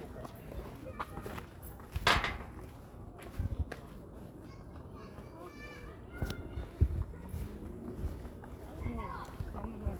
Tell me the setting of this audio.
park